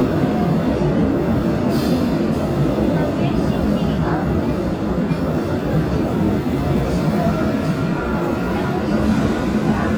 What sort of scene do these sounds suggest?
subway train